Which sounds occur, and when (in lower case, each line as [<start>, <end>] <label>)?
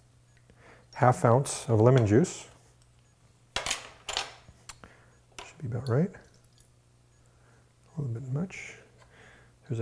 [0.00, 0.26] generic impact sounds
[0.00, 9.81] mechanisms
[0.44, 0.57] dishes, pots and pans
[0.57, 0.96] surface contact
[1.33, 1.44] generic impact sounds
[1.63, 1.87] dishes, pots and pans
[1.97, 2.12] generic impact sounds
[2.07, 2.23] dishes, pots and pans
[2.37, 3.47] generic impact sounds
[2.54, 2.79] surface contact
[3.61, 3.73] generic impact sounds
[3.76, 4.21] breathing
[4.36, 5.03] male speech
[5.00, 5.36] surface contact
[5.38, 7.60] male speech
[7.74, 8.06] breathing
[8.23, 9.78] male speech